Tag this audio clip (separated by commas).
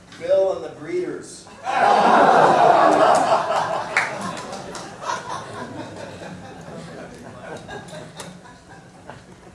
Speech